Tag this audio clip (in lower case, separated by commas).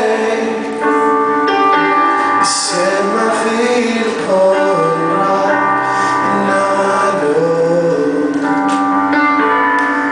music, male singing